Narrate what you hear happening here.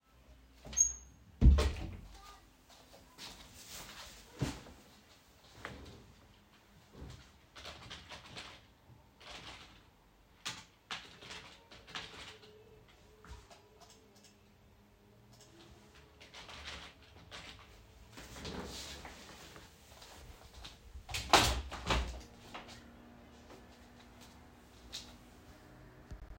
I started the scene sitting at the desk and typing on the keyboard. There were a few mouse clicks between typing segments. Then I stood up, opened the window, and returned to the desk.